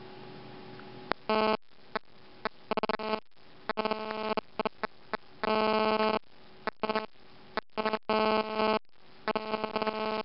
A buzzing noise is going off intermittently